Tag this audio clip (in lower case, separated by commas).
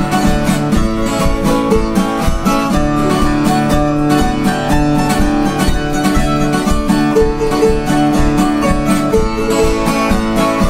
music